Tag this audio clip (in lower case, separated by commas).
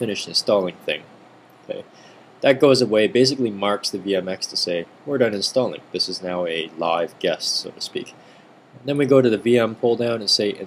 speech